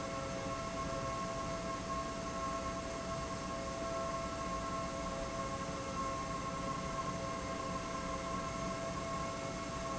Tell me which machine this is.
pump